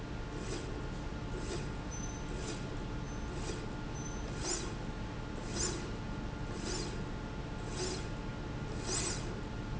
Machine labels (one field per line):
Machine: slide rail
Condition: normal